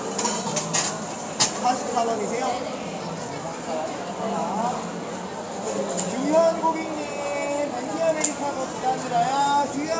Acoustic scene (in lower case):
cafe